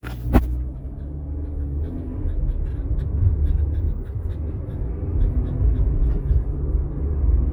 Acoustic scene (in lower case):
car